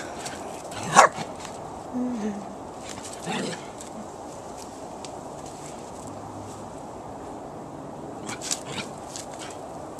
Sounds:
dog
pets
animal
bow-wow

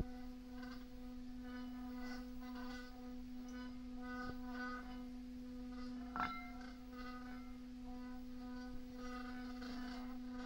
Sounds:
singing bowl

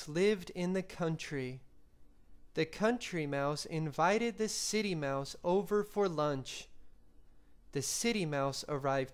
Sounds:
speech

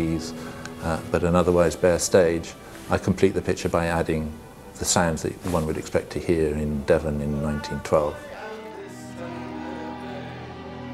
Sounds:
music
speech

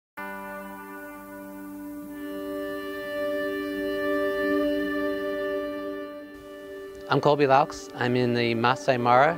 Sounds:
music
speech
harpsichord

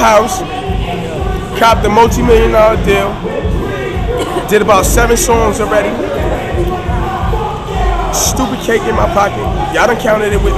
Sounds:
speech

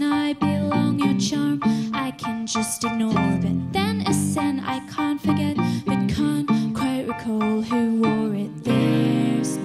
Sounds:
music

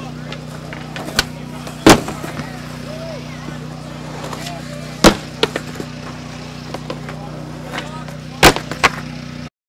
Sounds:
speech

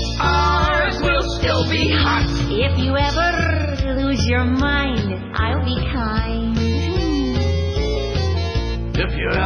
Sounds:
music

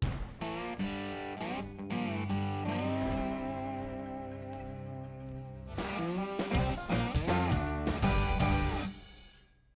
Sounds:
music

